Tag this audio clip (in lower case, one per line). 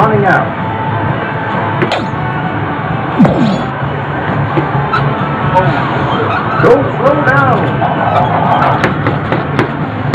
speech